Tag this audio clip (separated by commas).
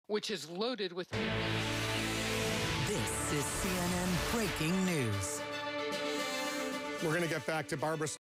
Music, Speech